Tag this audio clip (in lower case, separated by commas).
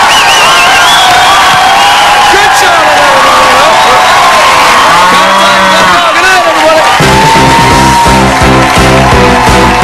speech, inside a large room or hall, music